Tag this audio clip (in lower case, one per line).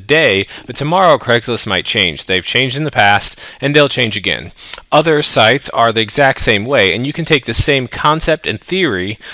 speech